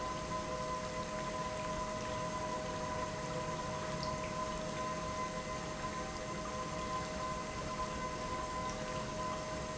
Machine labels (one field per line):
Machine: pump